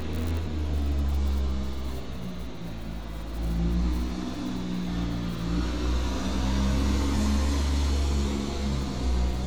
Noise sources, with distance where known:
engine of unclear size

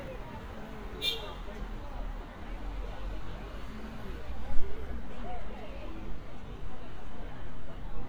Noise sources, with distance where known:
car horn, near
person or small group talking, near

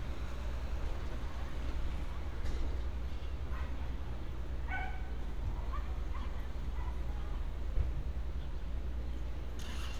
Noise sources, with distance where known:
small-sounding engine

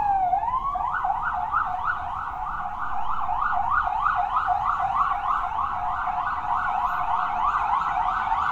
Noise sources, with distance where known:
unidentified alert signal, near

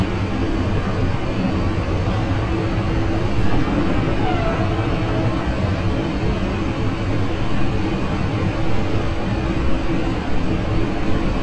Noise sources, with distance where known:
engine of unclear size, near

